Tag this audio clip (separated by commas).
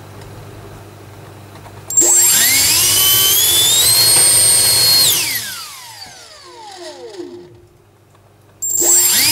Mechanical fan